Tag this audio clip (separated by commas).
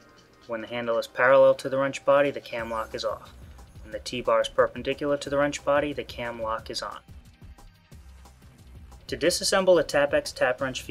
Music, Speech